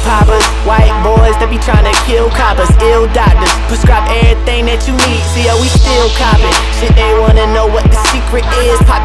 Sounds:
music

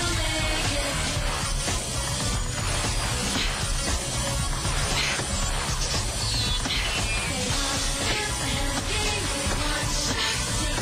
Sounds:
music

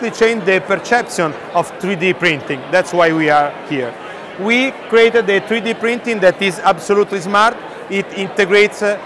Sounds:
speech

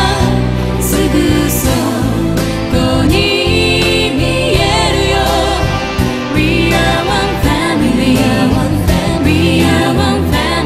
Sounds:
music
singing

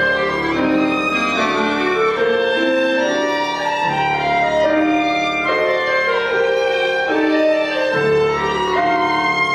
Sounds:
fiddle
musical instrument
music

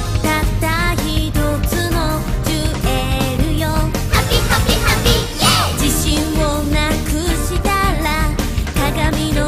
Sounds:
music

